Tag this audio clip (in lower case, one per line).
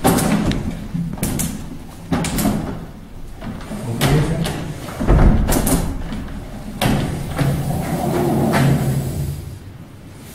sliding door